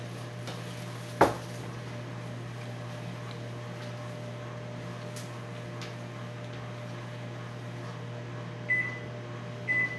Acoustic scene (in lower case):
kitchen